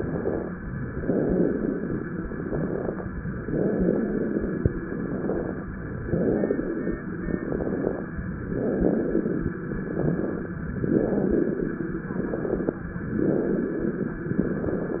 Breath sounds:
0.82-2.01 s: inhalation
2.30-3.08 s: exhalation
3.40-4.69 s: inhalation
4.93-5.71 s: exhalation
5.79-7.08 s: inhalation
7.25-8.03 s: exhalation
8.27-9.56 s: inhalation
9.79-10.57 s: exhalation
10.68-11.97 s: inhalation
12.14-12.92 s: exhalation
13.00-14.29 s: inhalation

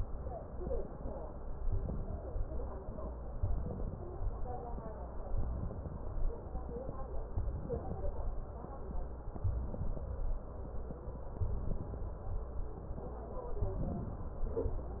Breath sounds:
1.58-2.50 s: inhalation
1.58-2.50 s: crackles
3.40-4.32 s: inhalation
3.40-4.32 s: crackles
5.29-6.21 s: inhalation
5.29-6.21 s: crackles
7.34-8.27 s: inhalation
7.34-8.27 s: crackles
9.36-10.29 s: inhalation
9.36-10.29 s: crackles
11.37-12.29 s: inhalation
11.37-12.29 s: crackles
13.56-14.48 s: inhalation

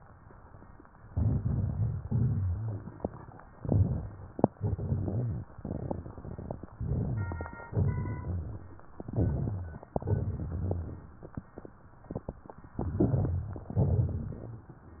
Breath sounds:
1.07-1.98 s: inhalation
1.08-1.97 s: crackles
1.99-2.93 s: crackles
2.01-2.92 s: exhalation
3.49-4.44 s: crackles
3.52-4.43 s: inhalation
4.56-5.47 s: exhalation
4.59-6.63 s: exhalation
4.59-6.63 s: crackles
6.73-7.62 s: inhalation
6.73-7.62 s: crackles
7.67-8.83 s: exhalation
7.67-8.83 s: crackles
8.95-9.86 s: inhalation
8.97-9.86 s: crackles
9.89-11.15 s: crackles
9.93-11.17 s: exhalation
12.73-13.76 s: inhalation
12.74-13.70 s: crackles
13.73-14.76 s: crackles

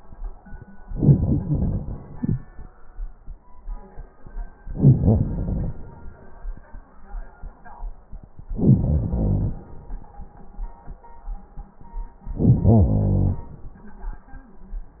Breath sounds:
0.88-2.13 s: inhalation
2.11-3.48 s: exhalation
4.67-5.79 s: inhalation
8.50-9.62 s: inhalation
12.35-13.46 s: inhalation

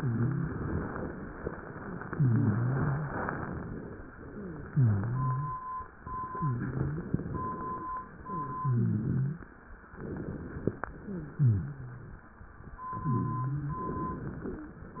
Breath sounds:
0.00-0.55 s: wheeze
2.06-3.19 s: wheeze
4.24-4.66 s: wheeze
4.68-5.66 s: wheeze
6.27-7.20 s: wheeze
8.25-9.49 s: wheeze
9.98-10.71 s: inhalation
10.76-12.30 s: exhalation
10.98-12.20 s: wheeze
12.92-13.85 s: wheeze
14.45-14.84 s: wheeze

